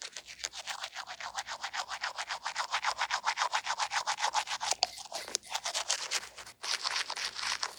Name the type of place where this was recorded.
restroom